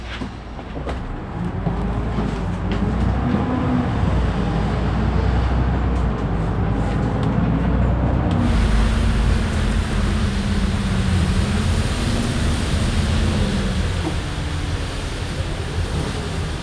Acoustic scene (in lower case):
bus